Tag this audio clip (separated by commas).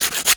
Tools